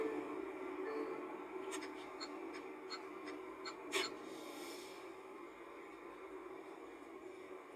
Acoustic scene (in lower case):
car